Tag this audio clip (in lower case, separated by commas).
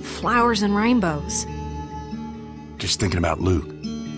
speech, music